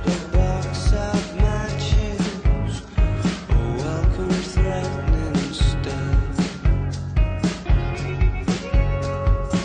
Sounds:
Music, Grunge

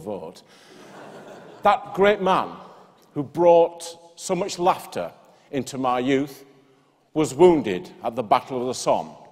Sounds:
Speech, man speaking

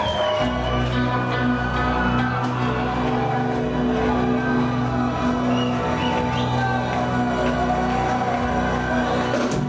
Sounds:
Music

